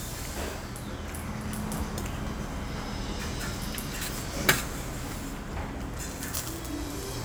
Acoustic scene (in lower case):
restaurant